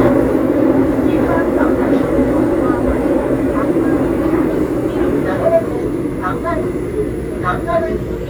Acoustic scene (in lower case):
subway train